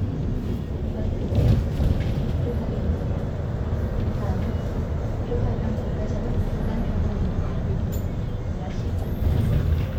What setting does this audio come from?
bus